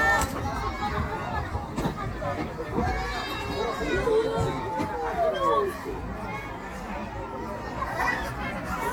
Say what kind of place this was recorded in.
park